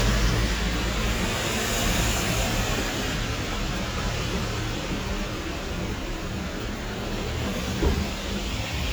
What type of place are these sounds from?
street